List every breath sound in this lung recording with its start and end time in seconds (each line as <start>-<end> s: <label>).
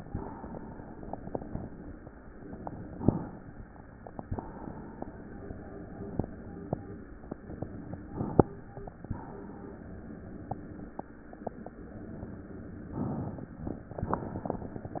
2.87-4.23 s: inhalation
4.23-5.36 s: exhalation
8.10-9.23 s: inhalation
9.23-10.95 s: exhalation
12.95-14.01 s: inhalation
14.01-15.00 s: exhalation